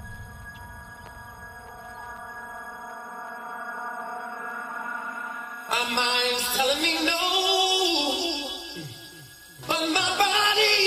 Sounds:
Music

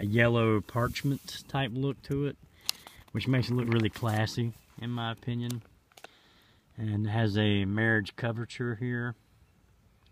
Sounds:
Speech

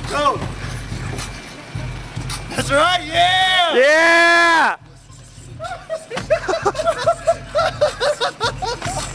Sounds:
Speech, Music

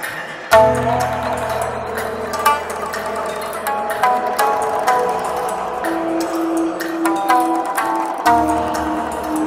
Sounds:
Tabla, Drum, Percussion

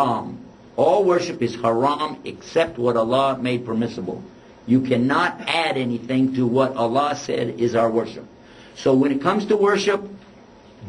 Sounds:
Speech

